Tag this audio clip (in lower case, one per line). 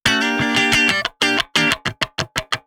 electric guitar
guitar
plucked string instrument
music
musical instrument